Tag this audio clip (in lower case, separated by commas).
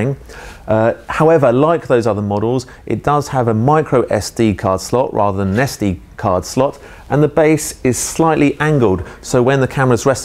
speech